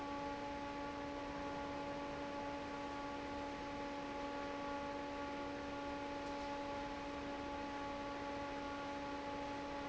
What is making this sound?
fan